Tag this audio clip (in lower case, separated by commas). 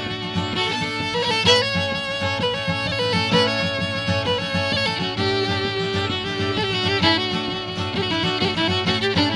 bowed string instrument, violin, pizzicato